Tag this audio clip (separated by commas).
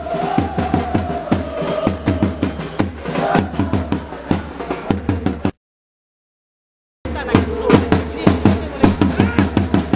Music, Speech, Choir